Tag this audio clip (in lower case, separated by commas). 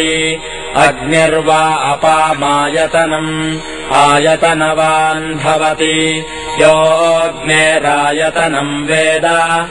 music, mantra